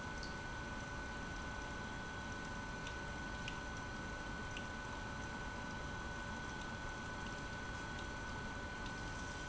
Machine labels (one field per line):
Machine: pump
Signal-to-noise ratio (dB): 6 dB